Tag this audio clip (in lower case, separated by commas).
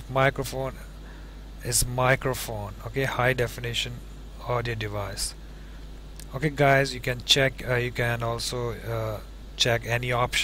speech